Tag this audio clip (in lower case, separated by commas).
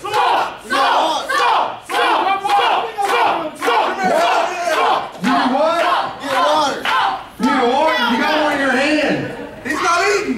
speech